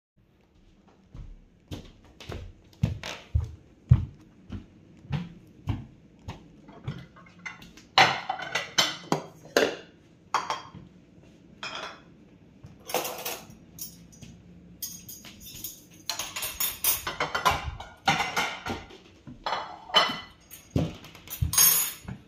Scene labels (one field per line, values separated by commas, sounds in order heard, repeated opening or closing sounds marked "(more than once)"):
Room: kitchen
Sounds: footsteps, cutlery and dishes